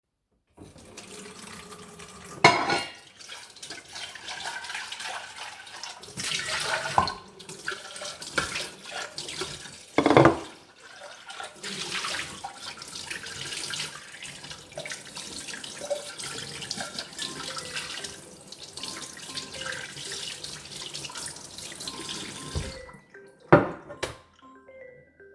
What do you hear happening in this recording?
I opened the tap and washed the plates while doing the same my phone ringed.